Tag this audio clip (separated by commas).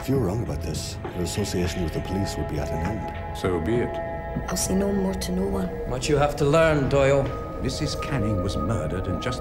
Music, Speech